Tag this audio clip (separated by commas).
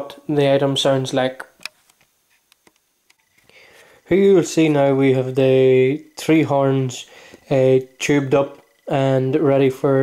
Speech